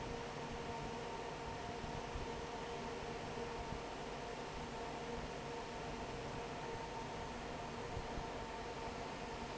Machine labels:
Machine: fan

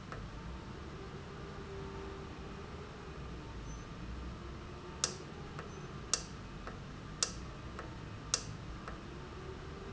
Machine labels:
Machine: valve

